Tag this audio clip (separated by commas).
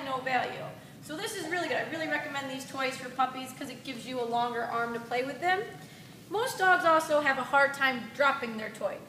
Speech